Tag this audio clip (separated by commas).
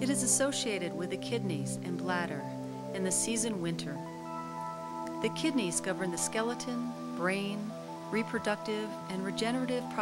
Water